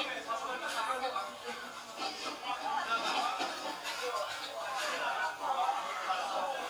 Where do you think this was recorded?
in a restaurant